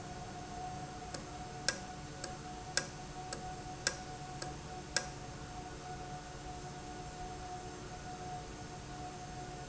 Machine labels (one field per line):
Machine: valve